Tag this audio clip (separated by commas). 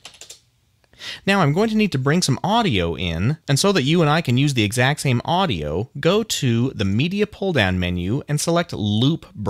Speech